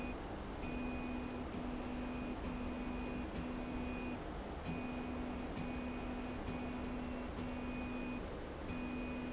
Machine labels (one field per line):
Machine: slide rail